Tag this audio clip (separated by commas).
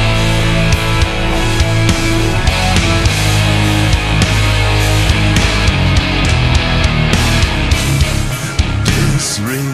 Music